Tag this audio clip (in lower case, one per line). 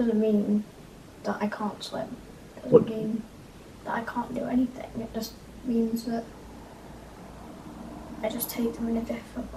speech